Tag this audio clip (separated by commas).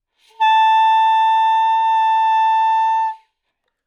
Music, Wind instrument, Musical instrument